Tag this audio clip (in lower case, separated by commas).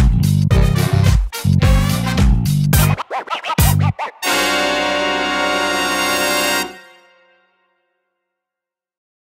music